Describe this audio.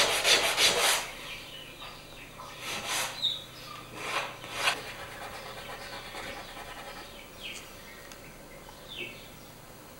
Scraping is occurring, and birds are chirping